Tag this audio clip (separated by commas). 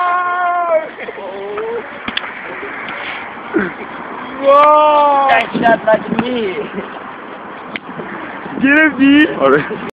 Speech